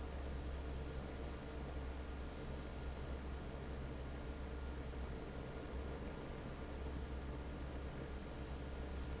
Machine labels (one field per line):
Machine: fan